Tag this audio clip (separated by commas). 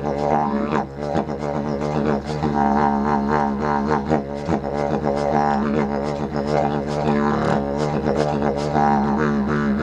playing didgeridoo